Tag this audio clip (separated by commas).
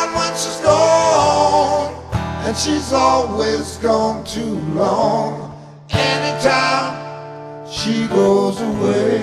Music